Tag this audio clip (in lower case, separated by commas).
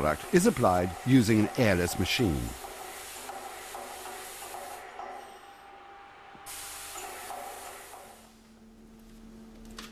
speech